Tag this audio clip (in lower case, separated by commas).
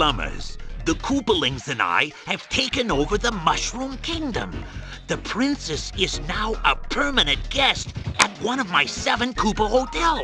music, speech